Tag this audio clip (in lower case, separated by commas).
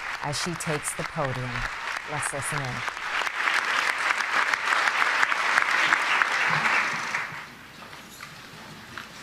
narration, female speech, speech